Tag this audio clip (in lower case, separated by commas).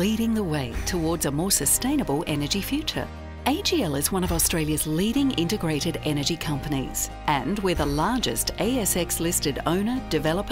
speech, music